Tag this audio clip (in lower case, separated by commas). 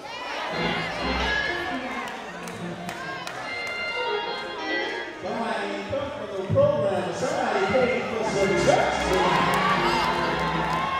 speech, music